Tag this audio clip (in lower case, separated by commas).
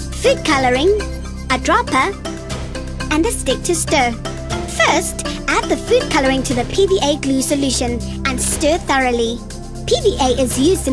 music, speech